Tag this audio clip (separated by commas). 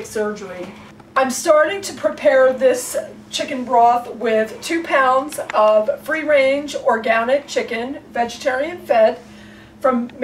Speech